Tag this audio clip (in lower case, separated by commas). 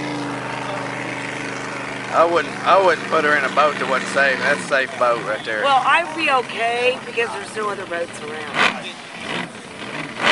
motorboat, boat